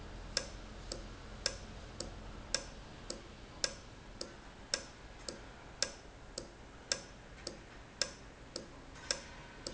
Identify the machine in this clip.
valve